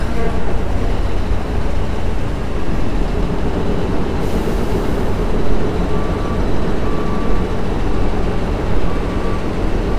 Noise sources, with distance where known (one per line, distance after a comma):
reverse beeper